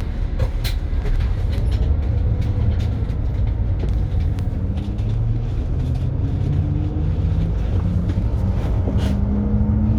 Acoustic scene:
bus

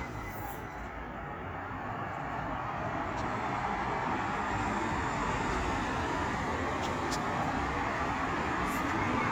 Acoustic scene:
street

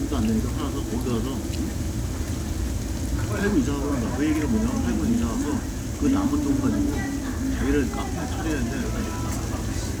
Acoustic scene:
crowded indoor space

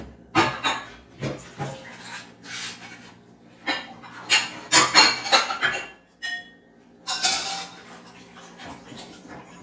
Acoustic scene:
kitchen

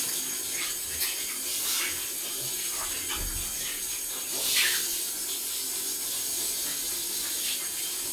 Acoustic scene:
restroom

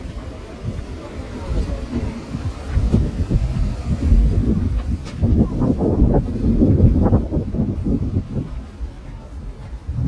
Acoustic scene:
residential area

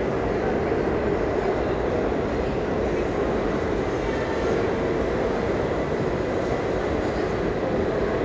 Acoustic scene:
crowded indoor space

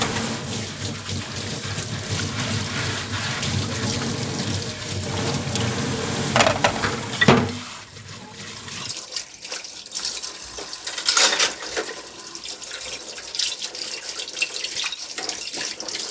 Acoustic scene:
kitchen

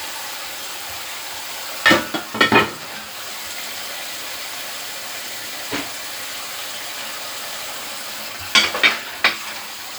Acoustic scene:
kitchen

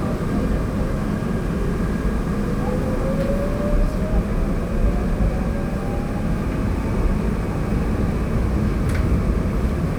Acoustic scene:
subway train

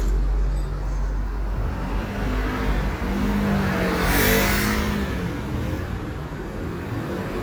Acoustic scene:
street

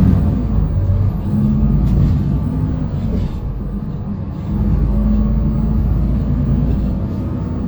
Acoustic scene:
bus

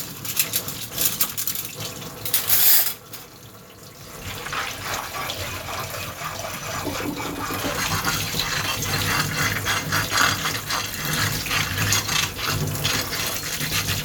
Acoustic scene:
kitchen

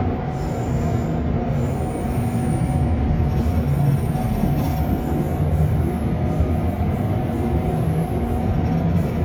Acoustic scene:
subway train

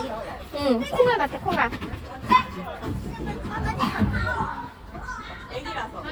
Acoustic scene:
park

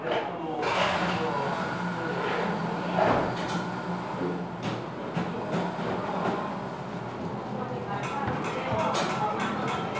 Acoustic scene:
cafe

